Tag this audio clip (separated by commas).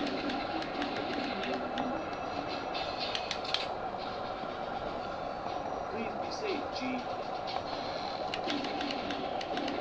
Speech